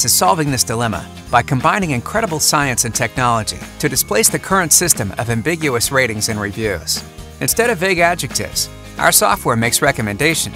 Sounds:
music, speech

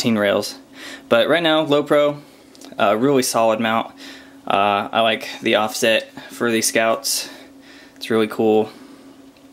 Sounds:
inside a small room, speech

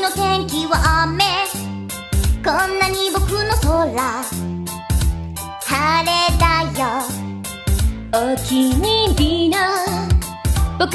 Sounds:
music

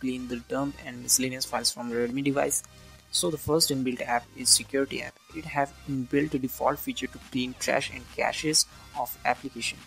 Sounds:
speech, music

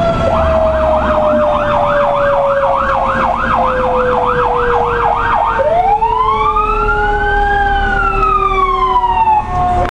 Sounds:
vehicle, engine

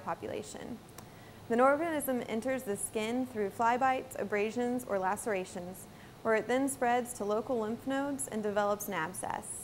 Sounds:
speech

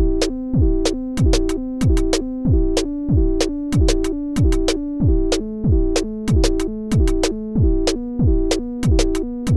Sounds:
music

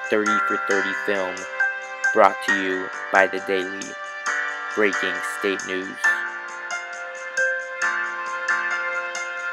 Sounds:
speech, music

